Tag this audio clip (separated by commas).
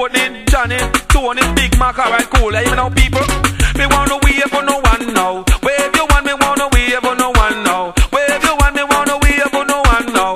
Music